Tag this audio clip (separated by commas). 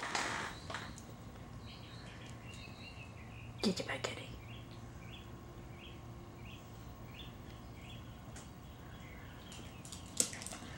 Speech